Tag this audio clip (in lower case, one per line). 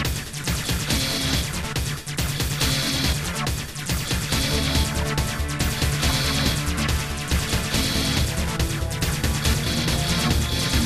music
background music